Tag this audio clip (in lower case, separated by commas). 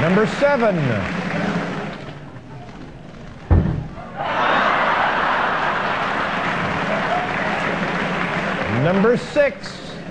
speech